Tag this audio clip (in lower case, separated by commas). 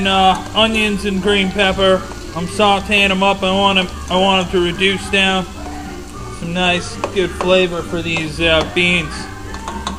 music, speech